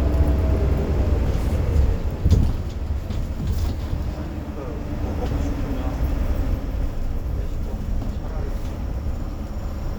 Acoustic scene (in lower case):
bus